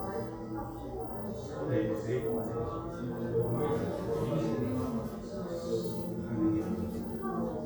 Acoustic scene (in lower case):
crowded indoor space